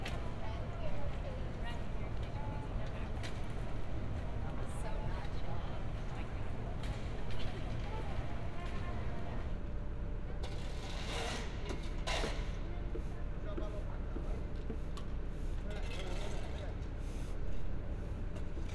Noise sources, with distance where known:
person or small group talking

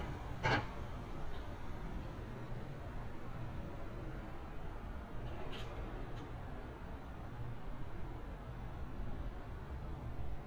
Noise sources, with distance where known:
background noise

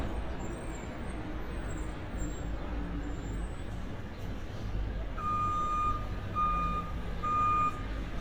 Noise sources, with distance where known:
reverse beeper, near

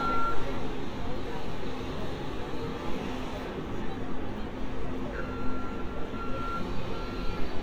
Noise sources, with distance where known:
reverse beeper, near
person or small group talking, far

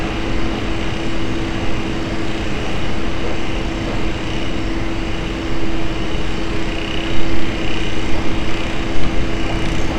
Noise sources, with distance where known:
engine of unclear size

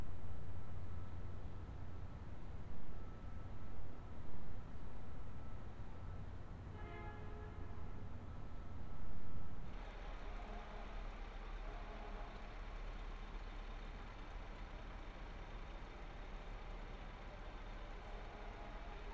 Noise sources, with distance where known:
car horn, far

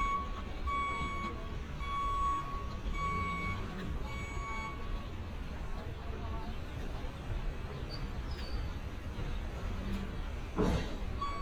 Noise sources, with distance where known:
reverse beeper

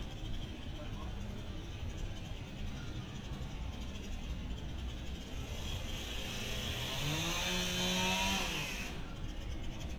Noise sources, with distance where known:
chainsaw

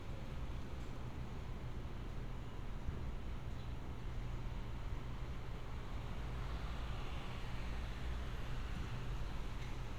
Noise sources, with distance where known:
medium-sounding engine, far

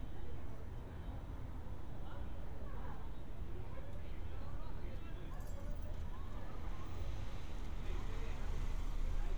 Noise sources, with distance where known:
person or small group talking, far

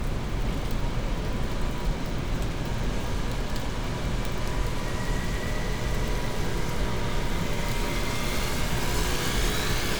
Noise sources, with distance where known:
engine of unclear size, near

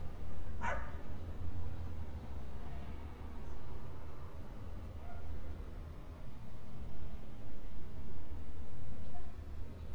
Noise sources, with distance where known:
dog barking or whining, near

